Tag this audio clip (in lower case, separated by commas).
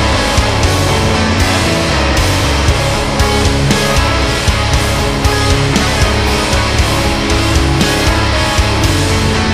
music